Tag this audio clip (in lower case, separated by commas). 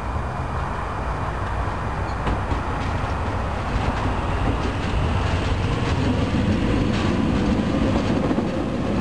rail transport, train wagon, subway, train, clickety-clack